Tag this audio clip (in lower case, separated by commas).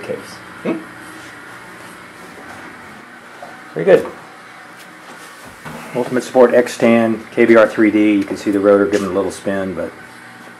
speech